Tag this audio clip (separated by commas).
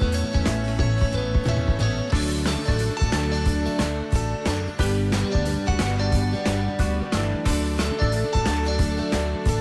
Music